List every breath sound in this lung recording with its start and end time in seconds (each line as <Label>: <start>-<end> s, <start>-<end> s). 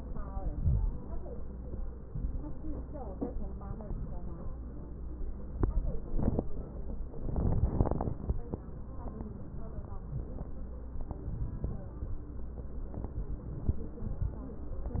Inhalation: 0.24-0.91 s
Crackles: 0.24-0.91 s